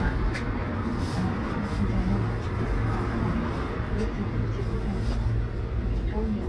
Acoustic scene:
bus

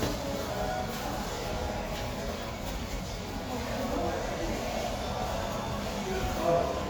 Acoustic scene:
crowded indoor space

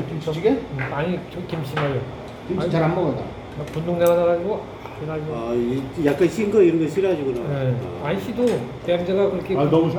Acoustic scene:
restaurant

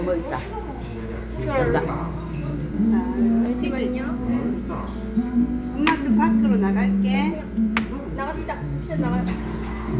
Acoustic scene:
restaurant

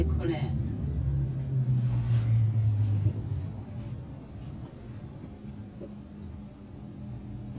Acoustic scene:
car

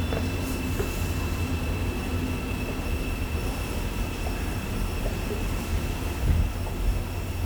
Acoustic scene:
subway station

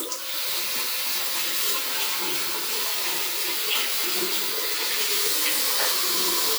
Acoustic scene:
restroom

